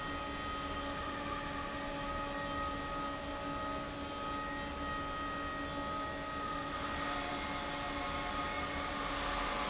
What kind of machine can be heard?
fan